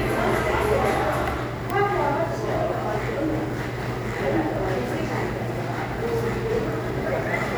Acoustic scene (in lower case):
crowded indoor space